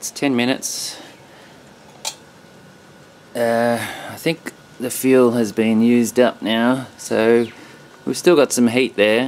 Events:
[0.00, 9.25] mechanisms
[0.01, 0.98] male speech
[0.95, 1.67] breathing
[2.02, 2.09] tick
[3.30, 3.78] male speech
[3.74, 4.19] breathing
[4.13, 4.51] male speech
[4.77, 6.83] male speech
[6.97, 7.48] male speech
[7.37, 7.50] bird
[8.01, 8.86] male speech
[8.97, 9.25] male speech

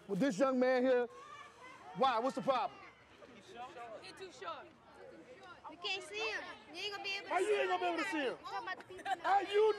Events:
[0.00, 1.05] male speech
[0.00, 9.75] background noise
[0.00, 9.75] conversation
[1.06, 2.83] human voice
[1.96, 2.62] male speech
[3.28, 3.91] male speech
[3.88, 4.61] child speech
[4.80, 5.52] child speech
[5.61, 6.39] child speech
[6.62, 8.31] child speech
[7.16, 8.38] male speech
[8.41, 8.84] child speech
[8.87, 9.26] giggle
[9.17, 9.75] male speech
[9.41, 9.75] human voice

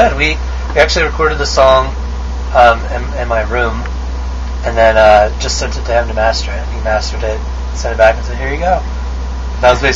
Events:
[0.00, 0.38] man speaking
[0.00, 9.95] mechanisms
[0.64, 1.85] man speaking
[0.65, 0.71] tick
[2.50, 3.75] man speaking
[3.81, 3.87] tick
[4.44, 4.49] tick
[4.61, 7.37] man speaking
[7.75, 8.86] man speaking
[9.60, 9.95] man speaking

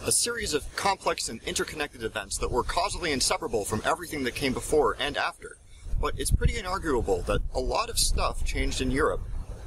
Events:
[0.00, 9.65] wind
[0.01, 9.65] background noise
[0.04, 5.25] male speech
[6.04, 9.16] male speech

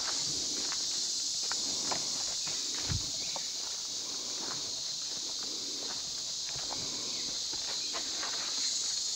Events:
[0.00, 0.13] footsteps
[0.00, 9.15] insect
[0.01, 9.15] wind
[0.18, 0.69] breathing
[0.66, 0.72] footsteps
[0.85, 0.97] footsteps
[1.42, 1.96] breathing
[1.43, 1.52] footsteps
[1.87, 1.97] footsteps
[2.18, 2.31] footsteps
[2.35, 2.44] bird vocalization
[2.60, 3.09] breathing
[2.69, 2.92] footsteps
[3.14, 3.38] bird vocalization
[3.31, 3.69] footsteps
[4.00, 4.65] breathing
[4.38, 4.61] footsteps
[4.99, 5.42] footsteps
[5.27, 5.97] breathing
[5.81, 6.03] footsteps
[6.43, 6.79] footsteps
[6.69, 7.08] breathing
[6.99, 7.19] bird vocalization
[7.53, 7.72] footsteps
[7.75, 7.92] bird vocalization
[7.92, 8.00] footsteps
[8.22, 8.45] footsteps

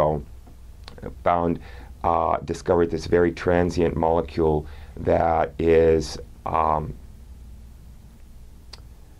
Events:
[0.00, 0.20] male speech
[0.00, 9.15] mechanisms
[0.40, 0.49] generic impact sounds
[0.80, 1.04] human sounds
[1.21, 1.56] male speech
[1.55, 1.89] breathing
[2.02, 4.58] male speech
[4.64, 4.91] breathing
[4.95, 5.46] male speech
[5.56, 6.18] male speech
[6.42, 6.89] male speech
[8.06, 8.22] generic impact sounds
[8.67, 8.79] human sounds

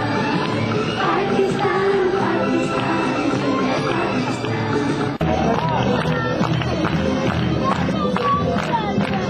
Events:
[0.01, 9.25] speech babble
[0.01, 9.25] music
[5.51, 6.09] footsteps
[6.25, 6.64] footsteps
[6.78, 6.91] footsteps
[7.22, 7.48] footsteps
[7.67, 7.92] footsteps
[8.06, 8.34] footsteps
[8.50, 8.73] footsteps
[8.84, 9.18] footsteps

